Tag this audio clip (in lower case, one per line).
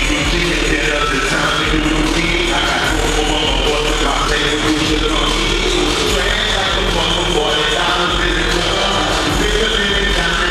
music